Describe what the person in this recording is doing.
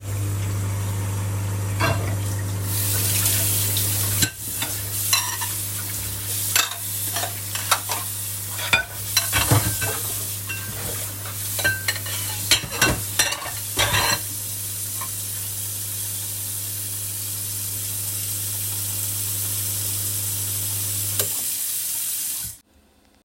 I started the microwave. While the microwave was working, I was washing dishes under running water. Then the microwave finished and stopped.